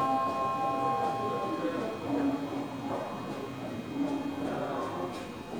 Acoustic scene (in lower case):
subway station